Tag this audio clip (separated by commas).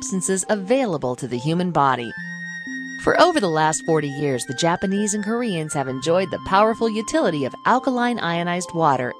Music, Speech